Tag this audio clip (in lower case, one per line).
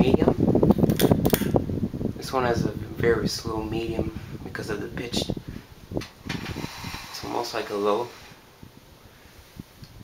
speech